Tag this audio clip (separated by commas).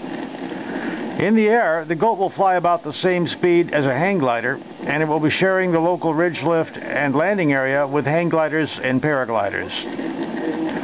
Speech